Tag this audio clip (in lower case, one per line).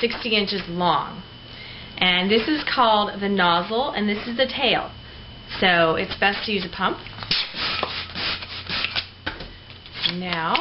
speech